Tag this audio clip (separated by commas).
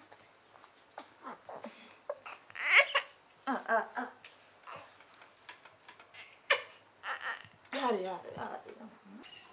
Speech